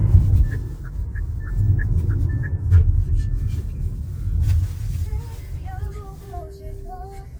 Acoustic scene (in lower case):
car